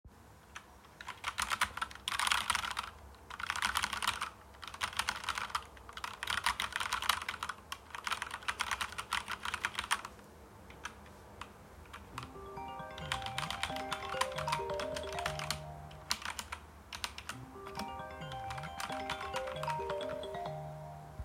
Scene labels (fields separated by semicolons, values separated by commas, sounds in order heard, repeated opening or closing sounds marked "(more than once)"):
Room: living room; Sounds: keyboard typing, phone ringing